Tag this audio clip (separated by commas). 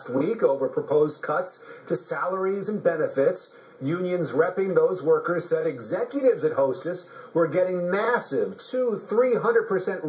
Speech